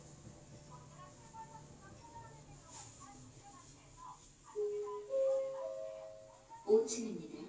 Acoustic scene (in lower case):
elevator